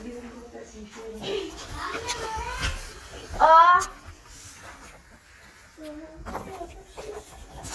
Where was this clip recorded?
in a crowded indoor space